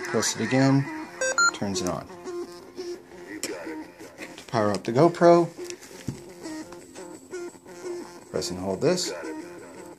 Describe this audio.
A man speaks and something beeps